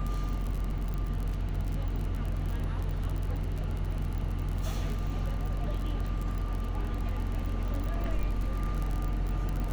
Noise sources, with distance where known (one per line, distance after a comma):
person or small group talking